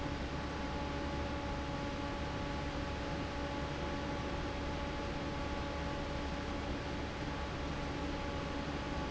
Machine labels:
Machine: fan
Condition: normal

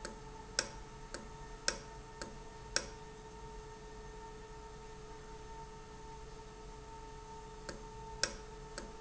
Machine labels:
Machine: valve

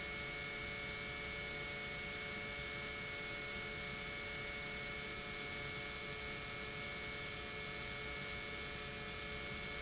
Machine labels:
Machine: pump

